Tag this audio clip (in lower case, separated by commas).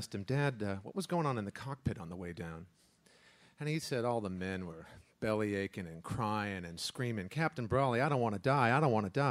speech